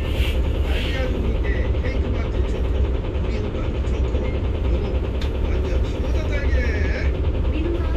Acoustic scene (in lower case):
bus